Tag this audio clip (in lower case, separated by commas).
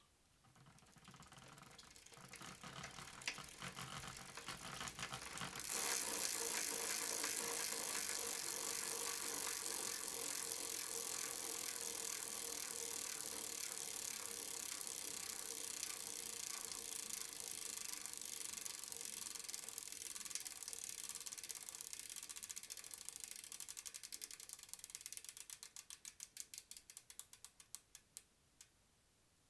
bicycle, vehicle